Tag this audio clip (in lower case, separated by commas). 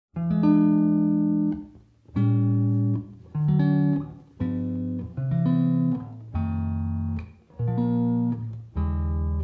tapping (guitar technique), plucked string instrument